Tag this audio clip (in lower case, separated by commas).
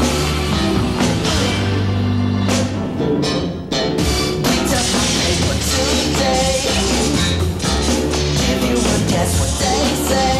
music